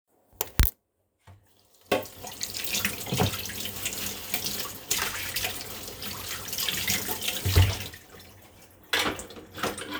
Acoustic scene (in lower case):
kitchen